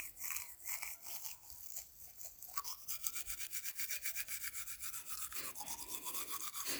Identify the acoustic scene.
restroom